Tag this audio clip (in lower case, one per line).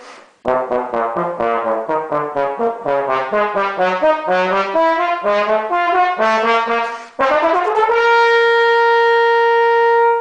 music